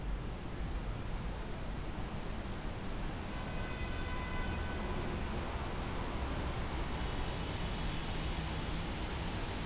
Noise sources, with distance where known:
car horn, far

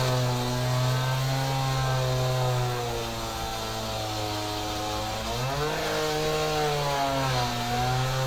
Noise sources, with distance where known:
unidentified powered saw, near

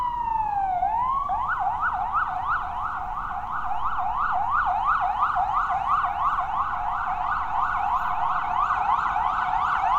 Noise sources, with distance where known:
siren, near

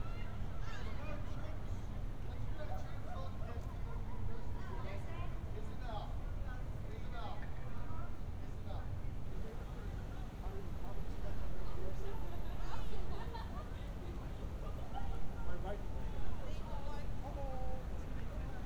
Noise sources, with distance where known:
person or small group talking

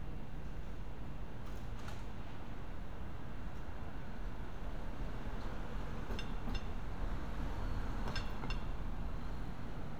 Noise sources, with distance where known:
unidentified impact machinery

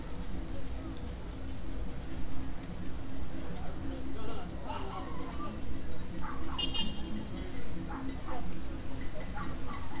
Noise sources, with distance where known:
music from an unclear source, far
dog barking or whining, near

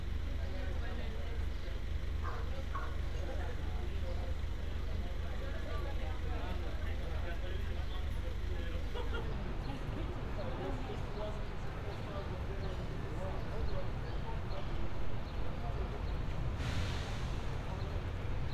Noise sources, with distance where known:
large-sounding engine
person or small group talking

